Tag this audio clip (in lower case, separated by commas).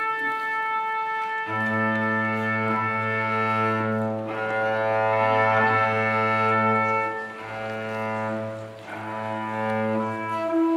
fiddle, music